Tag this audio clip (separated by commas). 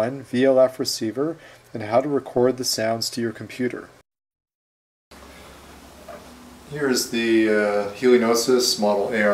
Speech